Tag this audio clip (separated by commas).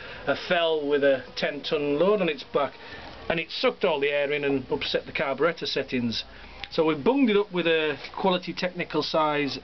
Speech